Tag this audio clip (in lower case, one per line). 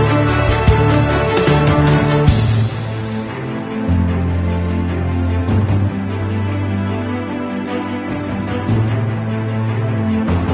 music